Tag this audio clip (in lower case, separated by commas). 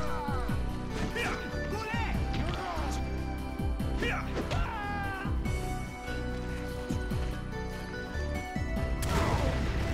music, speech